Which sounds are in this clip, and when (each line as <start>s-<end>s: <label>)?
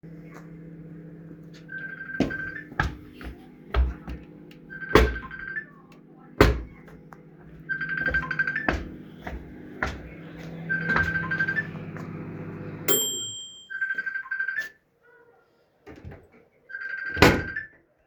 0.0s-13.6s: microwave
1.6s-2.8s: phone ringing
2.5s-4.5s: footsteps
4.7s-5.7s: phone ringing
4.9s-5.2s: wardrobe or drawer
6.3s-6.8s: wardrobe or drawer
7.6s-8.9s: phone ringing
7.8s-12.8s: footsteps
10.6s-11.7s: phone ringing
13.6s-14.8s: phone ringing
15.8s-17.5s: microwave
16.6s-17.7s: phone ringing